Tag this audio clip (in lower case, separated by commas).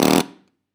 tools